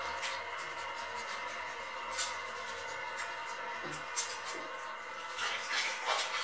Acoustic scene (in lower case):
restroom